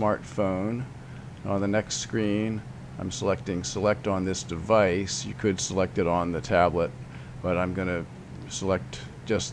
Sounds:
Speech

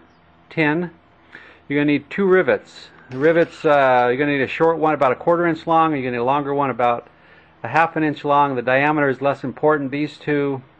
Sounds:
Speech

